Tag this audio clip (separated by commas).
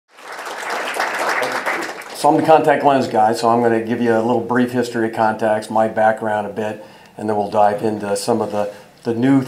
Speech